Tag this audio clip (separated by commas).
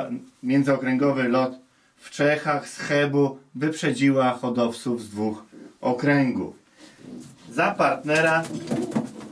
Speech